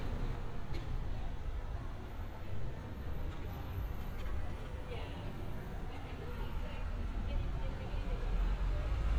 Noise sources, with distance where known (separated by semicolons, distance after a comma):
medium-sounding engine; person or small group talking, near